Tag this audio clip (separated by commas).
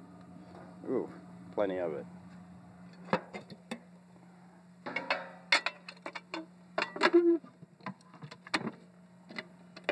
Speech